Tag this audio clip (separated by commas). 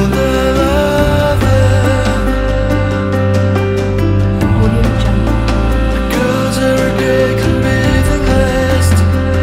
Music, Happy music